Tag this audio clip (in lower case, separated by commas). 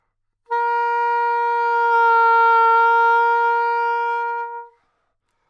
music, wind instrument, musical instrument